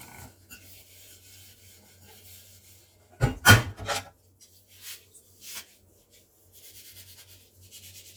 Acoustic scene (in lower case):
kitchen